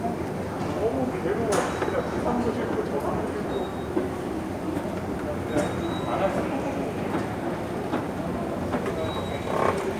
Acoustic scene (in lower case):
subway station